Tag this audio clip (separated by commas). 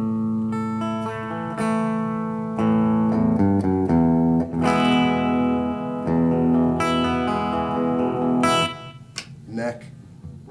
Speech, Music